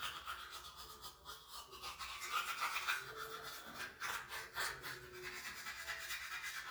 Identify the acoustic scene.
restroom